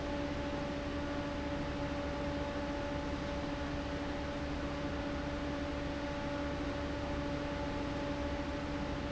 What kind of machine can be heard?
fan